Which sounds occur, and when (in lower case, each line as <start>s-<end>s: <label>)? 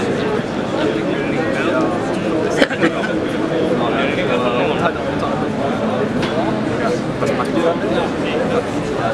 0.0s-9.1s: mechanisms
0.0s-9.1s: hubbub
2.5s-3.1s: cough
6.2s-6.4s: tick